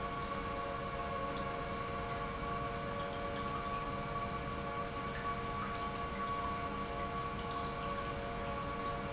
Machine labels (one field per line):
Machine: pump